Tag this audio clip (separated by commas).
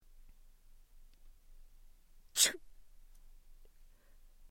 Respiratory sounds, Sneeze